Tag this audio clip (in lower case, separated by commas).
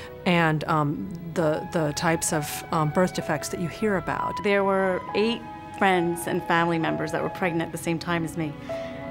speech, music